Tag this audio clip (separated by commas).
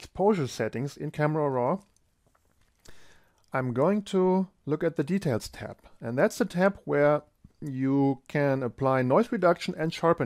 Speech